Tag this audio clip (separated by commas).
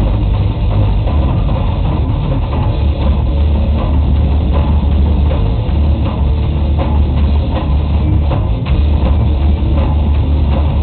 Drum kit, Drum, Musical instrument, Music